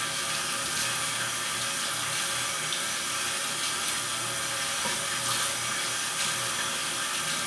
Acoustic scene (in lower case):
restroom